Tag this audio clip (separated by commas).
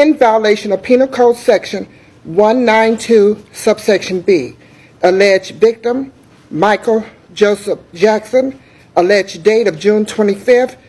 Speech